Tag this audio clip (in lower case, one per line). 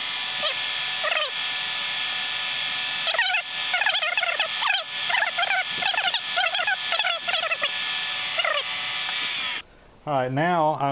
mechanisms